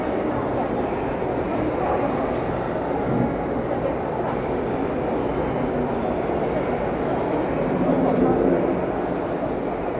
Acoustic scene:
crowded indoor space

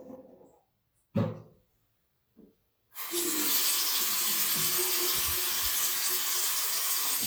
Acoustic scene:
restroom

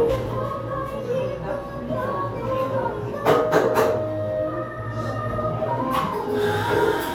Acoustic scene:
cafe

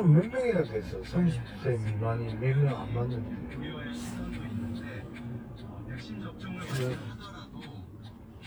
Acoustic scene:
car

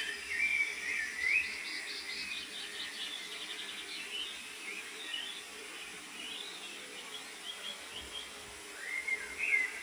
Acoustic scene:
park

